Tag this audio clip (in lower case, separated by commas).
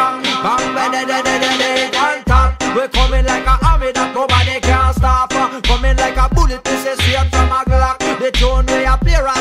music